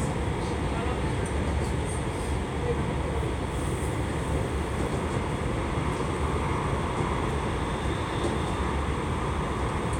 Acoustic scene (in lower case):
subway train